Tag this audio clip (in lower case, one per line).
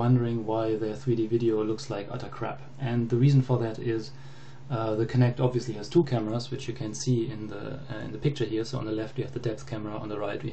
speech